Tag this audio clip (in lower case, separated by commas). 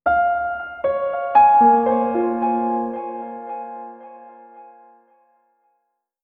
keyboard (musical), music, piano, musical instrument